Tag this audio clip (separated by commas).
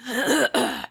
Human voice, Cough, Respiratory sounds